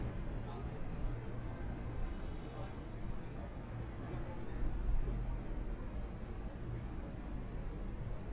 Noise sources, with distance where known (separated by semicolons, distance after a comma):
car horn, far; person or small group talking